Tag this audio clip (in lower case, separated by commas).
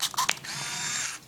camera, mechanisms